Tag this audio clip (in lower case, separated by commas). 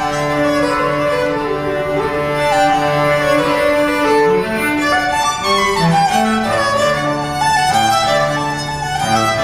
music, fiddle, cello, musical instrument